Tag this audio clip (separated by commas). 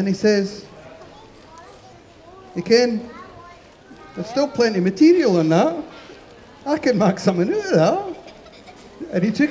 Speech